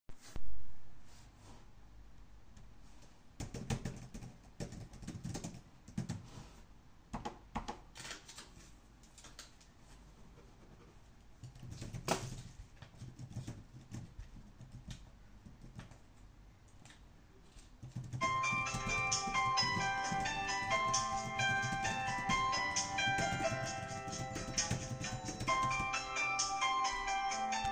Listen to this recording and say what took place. I was working on laptop and write some notes using keyboard then used the touchpad to open another file and then click the pen and write some notes on paper after that i have Continued typing on the keyboard and while typing my mobile rang.